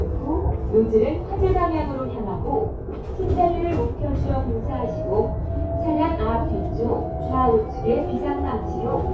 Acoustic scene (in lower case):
bus